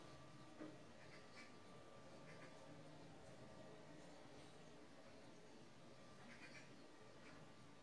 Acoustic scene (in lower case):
park